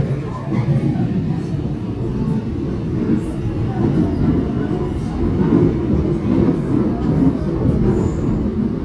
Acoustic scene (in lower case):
subway train